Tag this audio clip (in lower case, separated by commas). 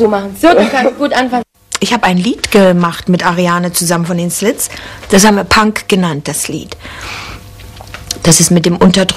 speech